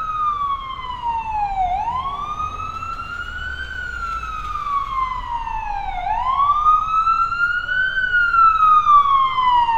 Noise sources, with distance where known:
siren, near

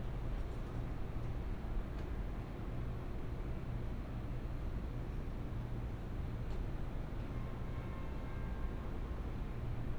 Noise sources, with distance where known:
background noise

